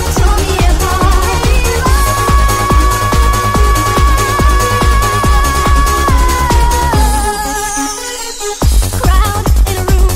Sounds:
Electronic music, Music, Techno

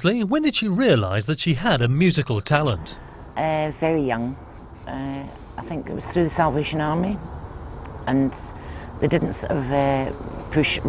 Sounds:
Speech

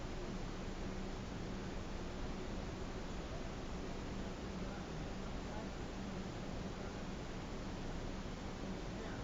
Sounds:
Speech

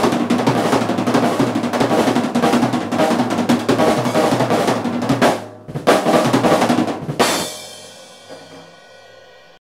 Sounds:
Drum kit, Drum, Music, Bass drum, Musical instrument, Roll

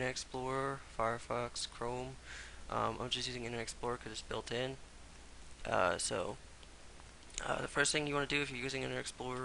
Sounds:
Speech

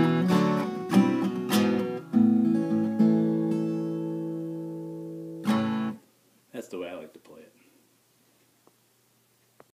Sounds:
Plucked string instrument, Music, Musical instrument, Speech, Guitar

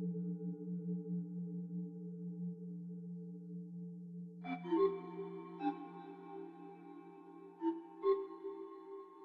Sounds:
Singing bowl

